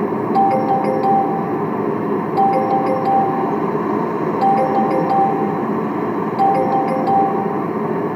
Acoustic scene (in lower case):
car